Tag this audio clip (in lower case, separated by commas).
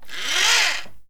engine